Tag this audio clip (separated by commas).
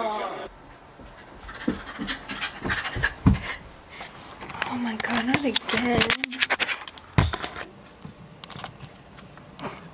Speech